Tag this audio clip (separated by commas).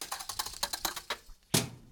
thud